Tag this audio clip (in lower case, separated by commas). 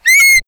squeak